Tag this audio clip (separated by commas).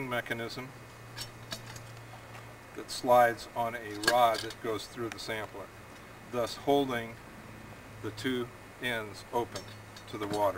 Speech